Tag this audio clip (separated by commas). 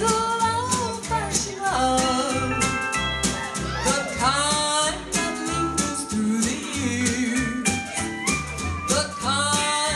Independent music, Music